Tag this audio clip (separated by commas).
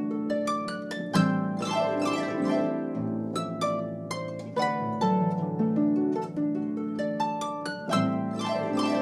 playing harp